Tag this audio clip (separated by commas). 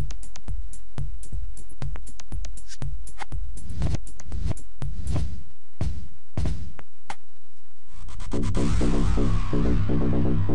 Electronic music, Music, Electronica